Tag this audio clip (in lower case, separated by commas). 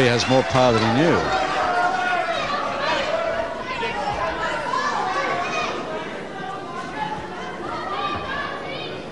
speech